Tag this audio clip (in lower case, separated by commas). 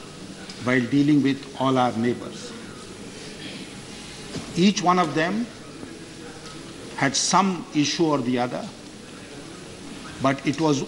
speech, male speech, narration